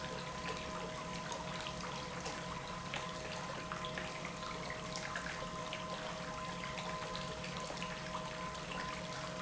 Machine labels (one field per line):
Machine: pump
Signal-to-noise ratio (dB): 0 dB